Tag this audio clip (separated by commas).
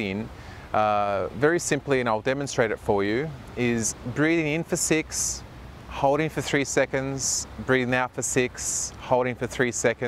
Speech